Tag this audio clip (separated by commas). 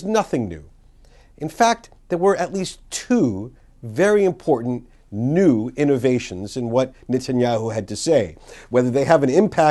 Speech, Narration, man speaking